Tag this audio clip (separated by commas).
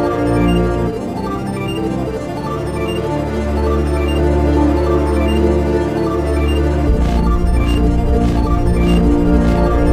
Music